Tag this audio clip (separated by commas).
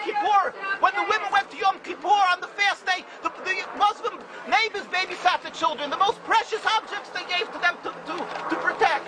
Speech, outside, urban or man-made